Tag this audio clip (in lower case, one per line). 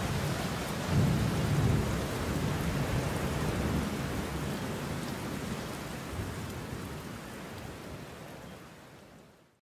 rustling leaves